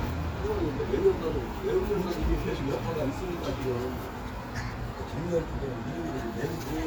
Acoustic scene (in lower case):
street